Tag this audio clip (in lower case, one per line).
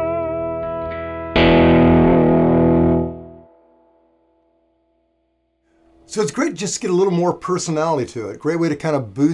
plucked string instrument
music
guitar
musical instrument
inside a small room